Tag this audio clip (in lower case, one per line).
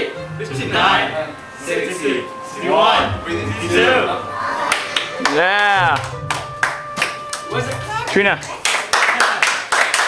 speech
music